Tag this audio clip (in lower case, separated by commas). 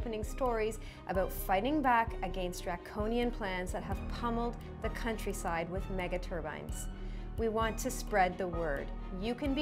music, speech